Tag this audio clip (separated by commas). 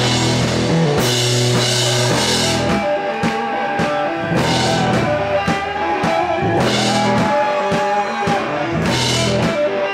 Music